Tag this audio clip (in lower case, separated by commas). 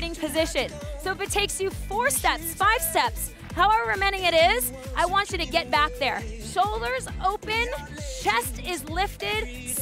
music, speech